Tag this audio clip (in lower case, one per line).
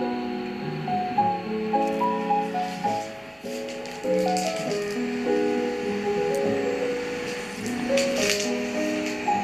music